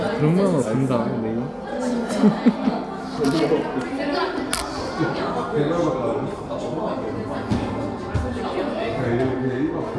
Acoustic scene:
crowded indoor space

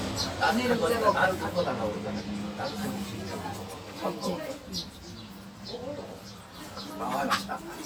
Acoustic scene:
restaurant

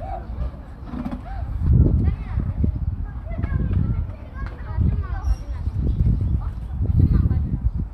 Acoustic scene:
park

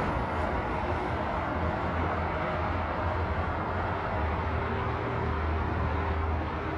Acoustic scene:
street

